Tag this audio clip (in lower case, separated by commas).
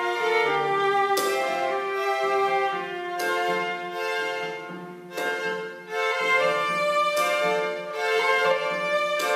bowed string instrument, music, inside a large room or hall